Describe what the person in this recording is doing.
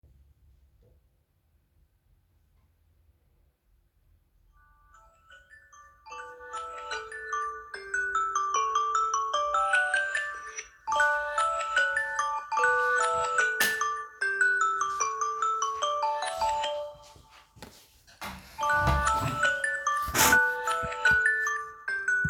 My phone started ringing, I walked a bit and switched on the light, pulled my chair, sat down.